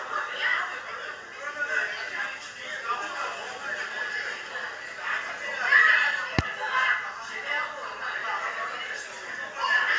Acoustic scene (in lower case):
crowded indoor space